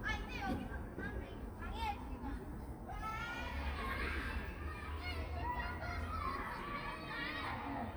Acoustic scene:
park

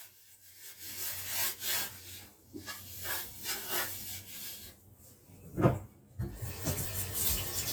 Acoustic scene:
kitchen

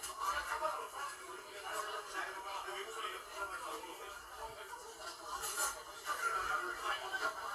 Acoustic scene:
crowded indoor space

